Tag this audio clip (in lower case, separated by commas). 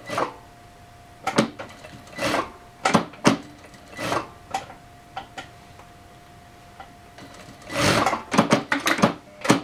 sewing machine